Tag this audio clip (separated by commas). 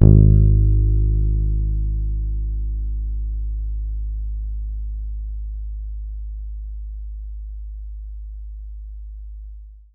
Musical instrument, Guitar, Music, Bass guitar, Plucked string instrument